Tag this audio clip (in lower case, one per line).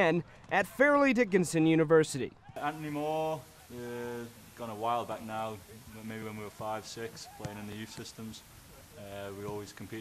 speech